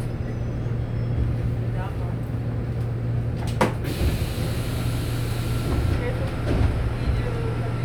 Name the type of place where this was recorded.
subway train